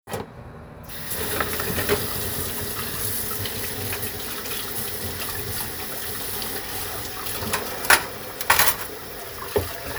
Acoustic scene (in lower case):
kitchen